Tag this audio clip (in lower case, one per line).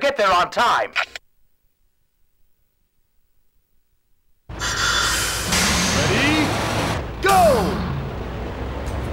speech